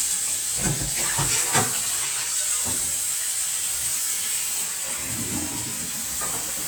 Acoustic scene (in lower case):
kitchen